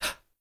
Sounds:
breathing, respiratory sounds

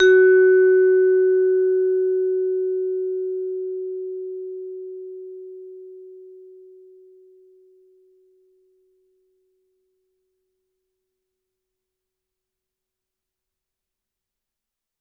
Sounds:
mallet percussion, musical instrument, music, percussion

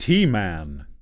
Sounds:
human voice, speech, male speech

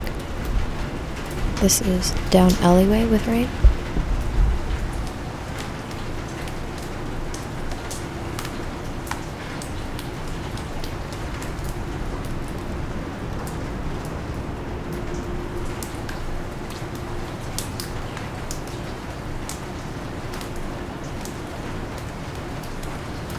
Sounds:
water, rain

